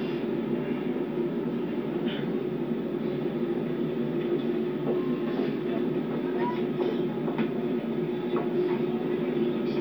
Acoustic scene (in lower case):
subway train